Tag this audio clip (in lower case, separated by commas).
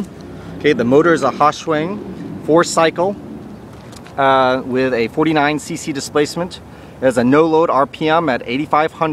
speech, vehicle